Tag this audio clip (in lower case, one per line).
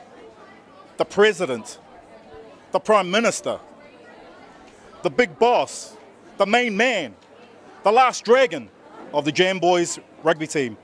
man speaking